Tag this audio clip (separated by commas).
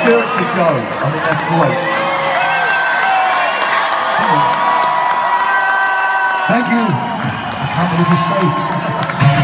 Music, Cheering, Speech